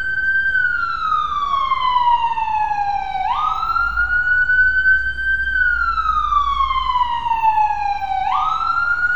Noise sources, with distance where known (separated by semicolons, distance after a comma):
siren, near